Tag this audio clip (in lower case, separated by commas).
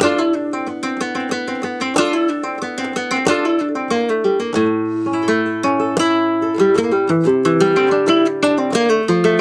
music, guitar, plucked string instrument, acoustic guitar, musical instrument